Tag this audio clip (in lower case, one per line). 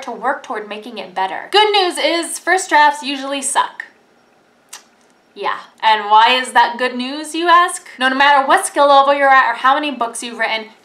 speech